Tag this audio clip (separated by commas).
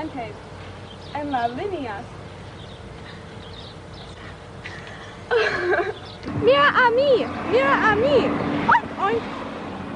Speech